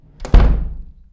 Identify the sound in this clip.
wooden door closing